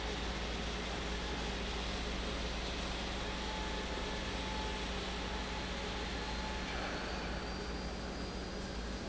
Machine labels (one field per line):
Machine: pump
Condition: normal